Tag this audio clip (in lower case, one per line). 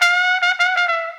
musical instrument
music
brass instrument